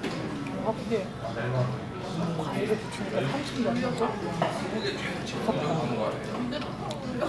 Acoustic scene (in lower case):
crowded indoor space